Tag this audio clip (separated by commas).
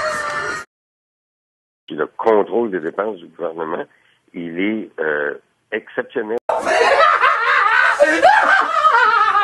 Laughter, man speaking, Speech